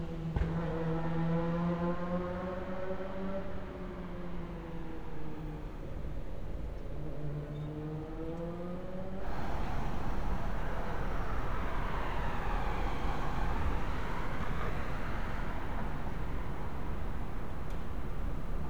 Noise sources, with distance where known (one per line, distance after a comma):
medium-sounding engine